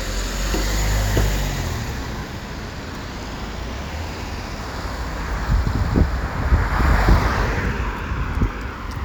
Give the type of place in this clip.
street